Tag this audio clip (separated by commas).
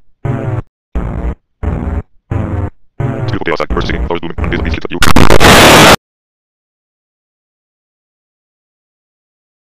Music